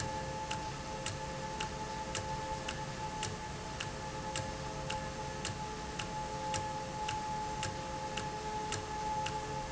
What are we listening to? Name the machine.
valve